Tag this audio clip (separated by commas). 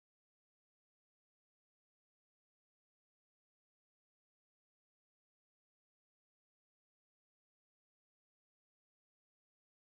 Music, Theme music